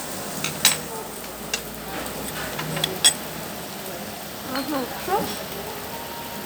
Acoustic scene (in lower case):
restaurant